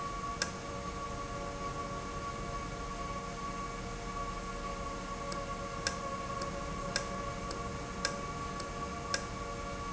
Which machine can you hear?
valve